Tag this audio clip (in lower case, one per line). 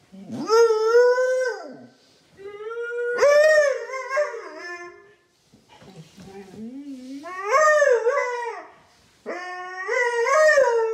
dog howling